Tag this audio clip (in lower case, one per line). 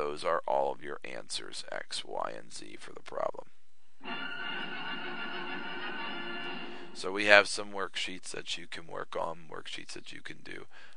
music
speech